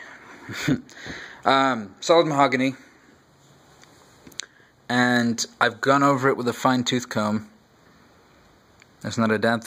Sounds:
speech

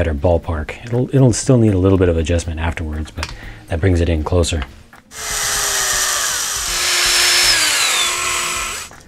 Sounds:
drill, inside a small room, speech

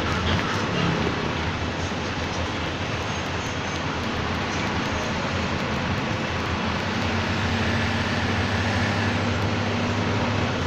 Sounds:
vehicle

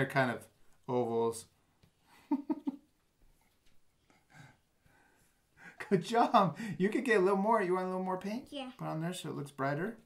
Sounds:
child speech, speech

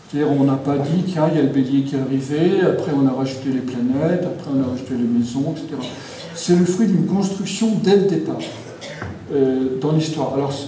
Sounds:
speech

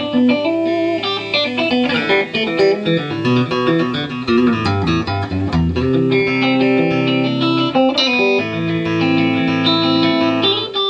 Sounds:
music, electric guitar

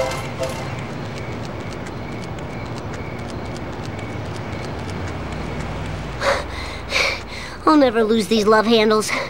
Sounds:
run, speech

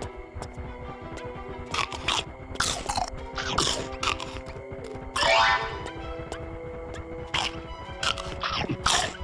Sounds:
outside, urban or man-made, music

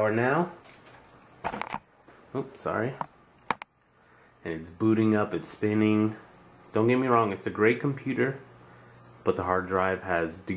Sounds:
inside a small room, speech

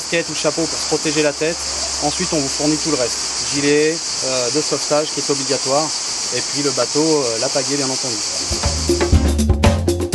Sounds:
speech, music

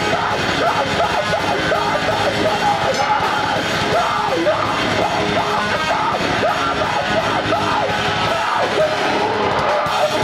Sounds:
music

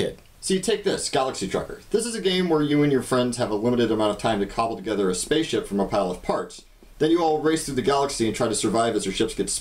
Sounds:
speech

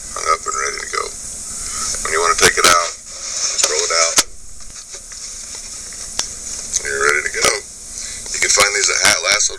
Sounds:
speech

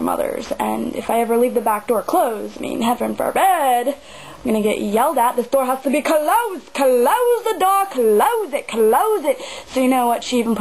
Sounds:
speech

